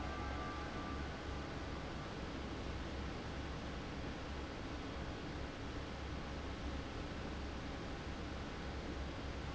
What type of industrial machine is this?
fan